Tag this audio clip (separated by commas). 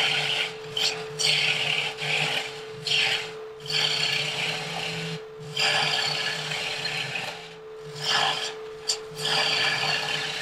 lathe spinning